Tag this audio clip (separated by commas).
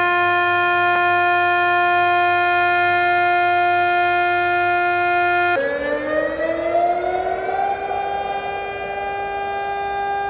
civil defense siren